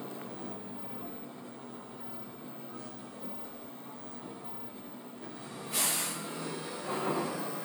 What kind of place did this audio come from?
bus